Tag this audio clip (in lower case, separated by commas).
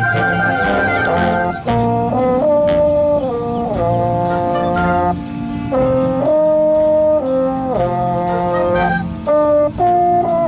playing french horn